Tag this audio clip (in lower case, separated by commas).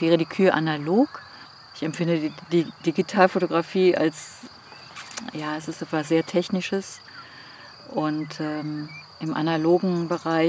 cattle mooing